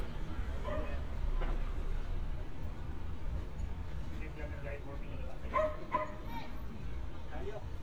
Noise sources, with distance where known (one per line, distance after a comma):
person or small group talking, near
dog barking or whining